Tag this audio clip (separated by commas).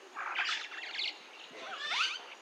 Animal, Bird, Wild animals